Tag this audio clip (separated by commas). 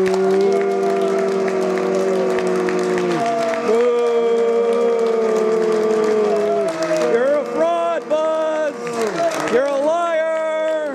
Speech